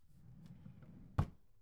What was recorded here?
wooden drawer opening